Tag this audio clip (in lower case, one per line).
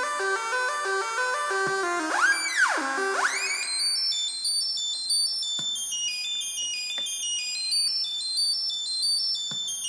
musical instrument
music